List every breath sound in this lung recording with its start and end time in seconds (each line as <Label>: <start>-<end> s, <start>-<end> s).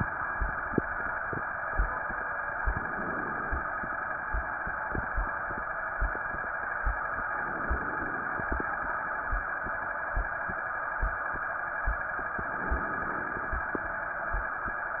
Inhalation: 2.66-3.76 s, 7.34-8.45 s, 12.52-13.78 s